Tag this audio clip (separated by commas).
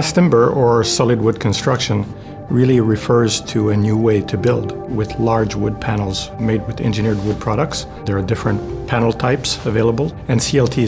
Music, Speech